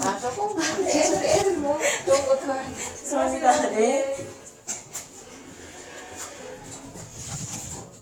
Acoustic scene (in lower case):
elevator